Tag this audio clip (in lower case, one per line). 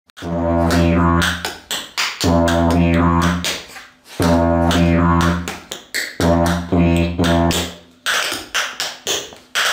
music
didgeridoo